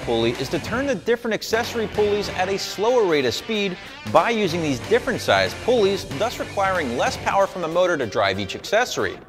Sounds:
speech
music

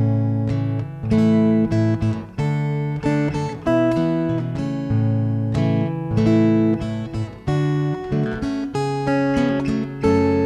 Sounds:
music

